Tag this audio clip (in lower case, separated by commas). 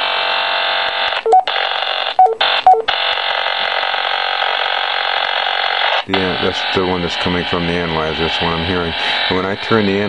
speech